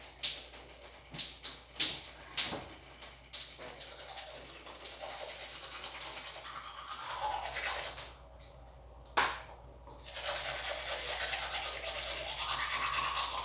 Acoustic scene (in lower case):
restroom